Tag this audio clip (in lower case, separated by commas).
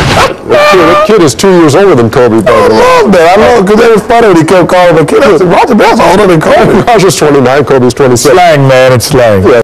speech